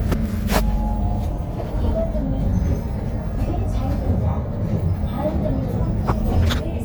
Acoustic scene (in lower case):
bus